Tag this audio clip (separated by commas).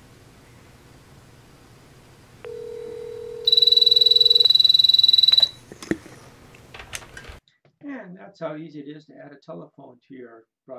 Speech, Telephone